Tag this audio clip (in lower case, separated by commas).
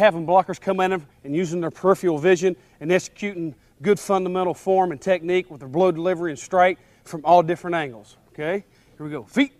speech